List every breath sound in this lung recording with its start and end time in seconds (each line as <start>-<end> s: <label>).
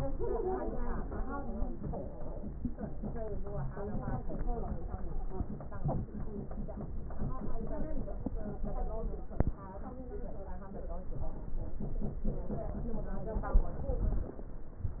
1.04-2.49 s: stridor
4.51-5.60 s: stridor
8.25-9.34 s: stridor